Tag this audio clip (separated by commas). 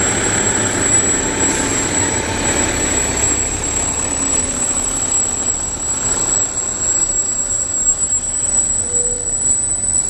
Vehicle, Truck